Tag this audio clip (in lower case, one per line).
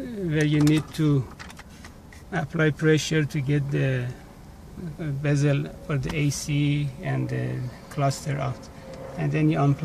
speech